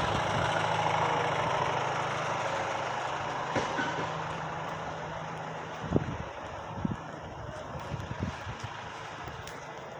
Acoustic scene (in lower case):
residential area